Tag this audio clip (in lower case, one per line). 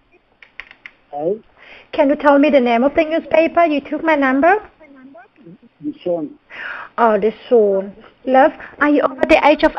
speech